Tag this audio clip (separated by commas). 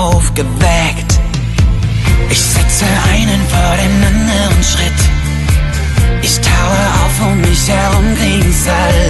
Music